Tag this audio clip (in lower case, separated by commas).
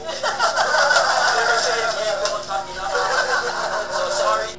laughter, human voice